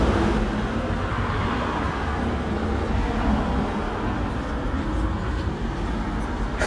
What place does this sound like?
residential area